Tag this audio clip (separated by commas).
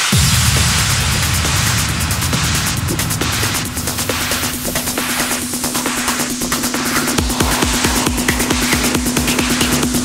Music